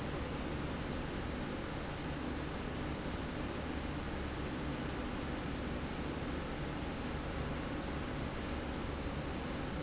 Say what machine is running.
slide rail